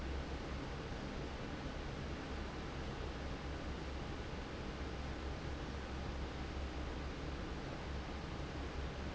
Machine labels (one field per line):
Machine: fan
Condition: normal